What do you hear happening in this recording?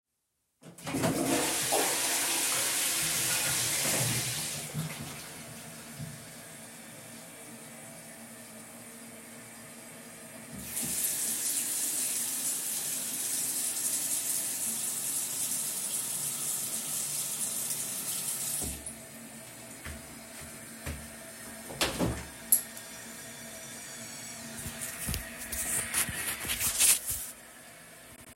I flushed the toilet and turned on the water. Then I walked to the window and opened it.